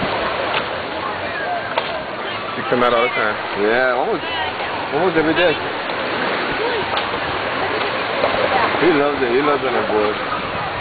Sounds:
Speech

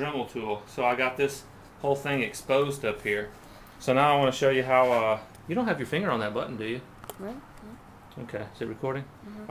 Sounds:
Speech

